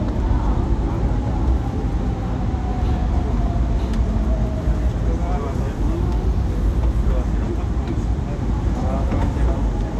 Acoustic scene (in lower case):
subway train